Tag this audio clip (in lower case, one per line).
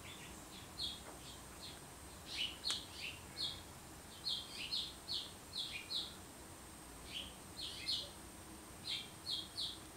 baltimore oriole calling